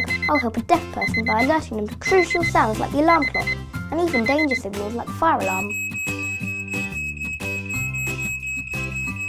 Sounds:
Speech, Music

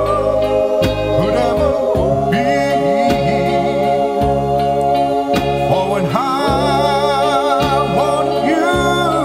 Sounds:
Male singing, Music, Choir

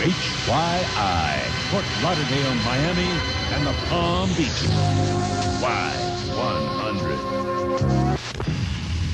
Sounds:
Music, Speech

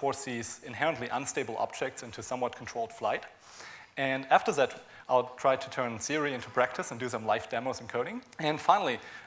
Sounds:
Speech

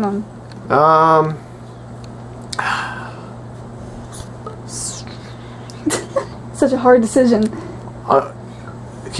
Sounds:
Speech, inside a small room

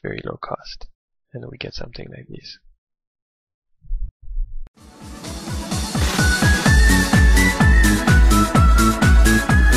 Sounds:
Speech, Music

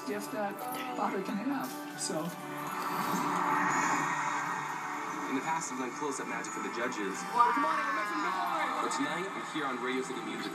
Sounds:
Soundtrack music, Music, Happy music, Theme music

